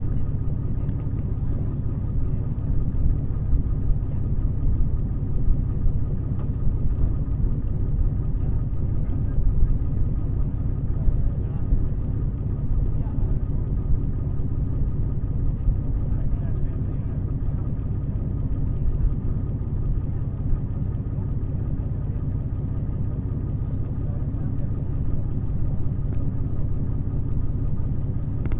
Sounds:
vehicle
water vehicle

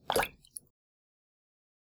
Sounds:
drip
liquid

